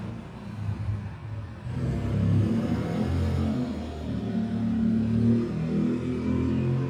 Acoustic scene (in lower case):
residential area